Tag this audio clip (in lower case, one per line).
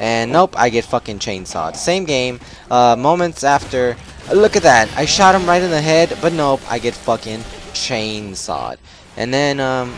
speech